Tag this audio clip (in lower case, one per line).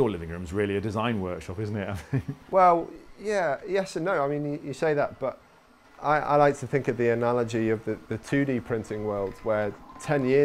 speech